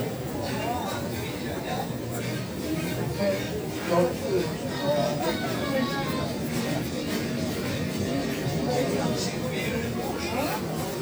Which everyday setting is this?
crowded indoor space